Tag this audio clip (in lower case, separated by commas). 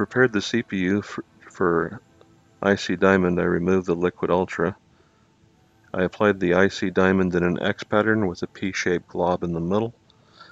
speech